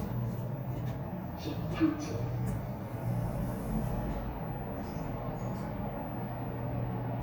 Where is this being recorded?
in an elevator